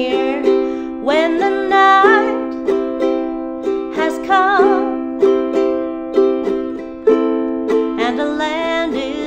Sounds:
playing ukulele

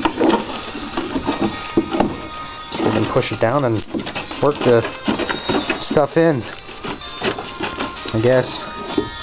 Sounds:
speech, music

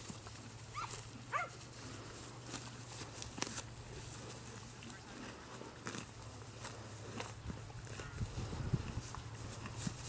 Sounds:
animal

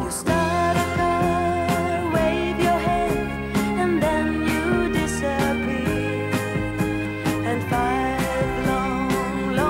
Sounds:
music

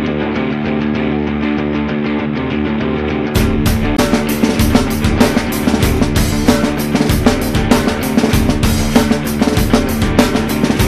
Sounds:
jazz, music

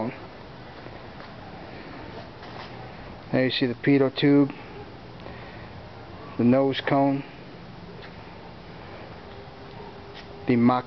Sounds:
speech

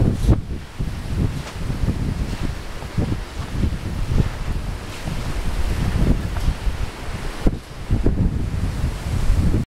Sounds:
wind, wind noise (microphone)

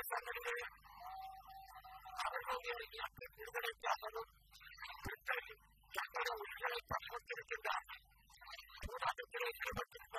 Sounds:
male speech, speech

